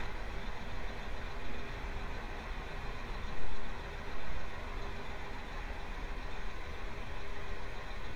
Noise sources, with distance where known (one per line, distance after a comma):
engine of unclear size, near